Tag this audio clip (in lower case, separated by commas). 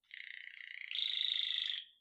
bird, wild animals, bird song, animal, tweet